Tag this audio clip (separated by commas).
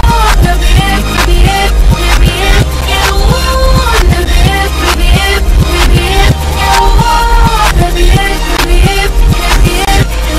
Male singing, Music